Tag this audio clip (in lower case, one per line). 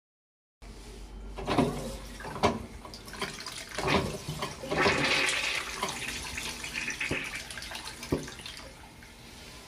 toilet flushing
toilet flush